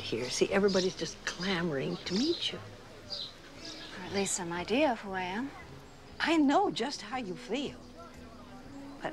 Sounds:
Speech, Music

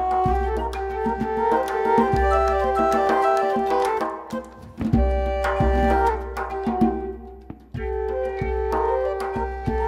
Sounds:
Music, Percussion

